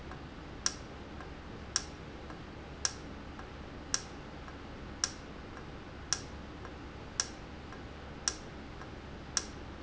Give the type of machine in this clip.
valve